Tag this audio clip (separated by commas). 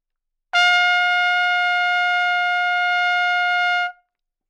Musical instrument, Trumpet, Music, Brass instrument